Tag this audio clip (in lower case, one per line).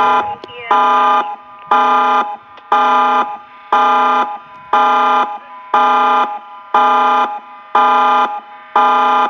siren
speech